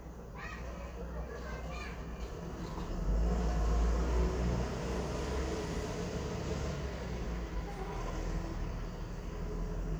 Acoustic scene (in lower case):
residential area